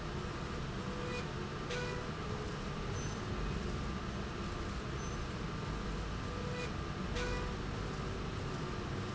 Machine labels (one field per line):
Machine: slide rail